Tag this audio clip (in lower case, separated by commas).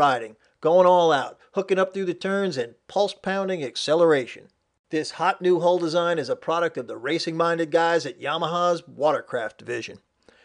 speech